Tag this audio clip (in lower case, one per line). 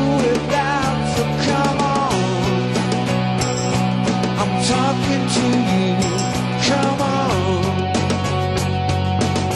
music